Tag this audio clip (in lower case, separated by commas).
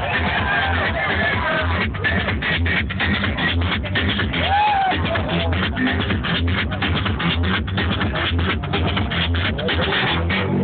speech, music